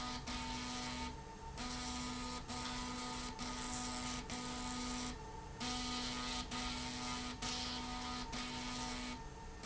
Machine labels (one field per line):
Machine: slide rail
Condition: abnormal